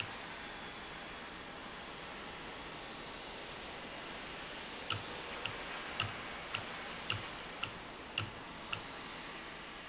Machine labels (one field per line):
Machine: valve